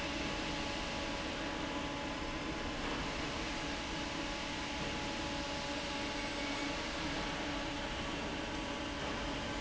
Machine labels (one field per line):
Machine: fan